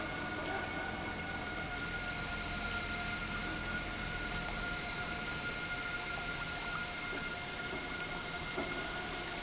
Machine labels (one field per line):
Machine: pump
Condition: normal